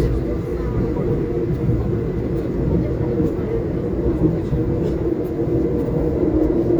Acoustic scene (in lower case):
subway train